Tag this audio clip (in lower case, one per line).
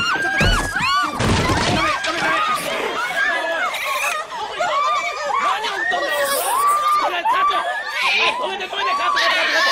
speech